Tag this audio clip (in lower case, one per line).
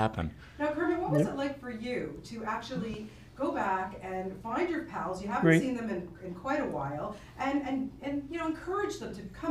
speech